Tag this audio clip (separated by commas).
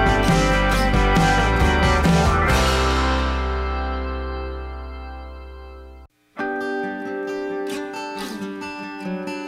Music, Acoustic guitar